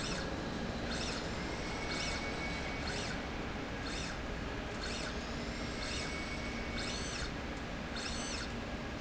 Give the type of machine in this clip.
slide rail